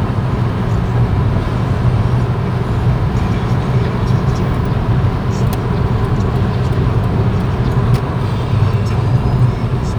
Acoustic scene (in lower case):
car